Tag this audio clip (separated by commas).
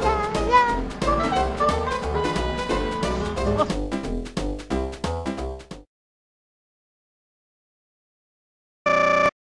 Music